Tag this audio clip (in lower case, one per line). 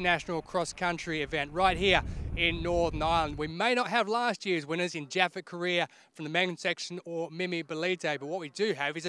speech